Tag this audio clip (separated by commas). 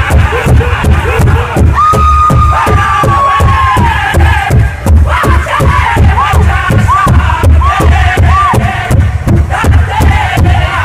Music